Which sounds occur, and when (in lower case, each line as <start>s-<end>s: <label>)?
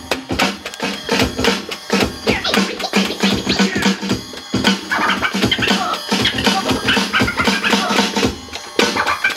0.0s-9.3s: music
2.2s-2.4s: human voice
3.6s-4.0s: human voice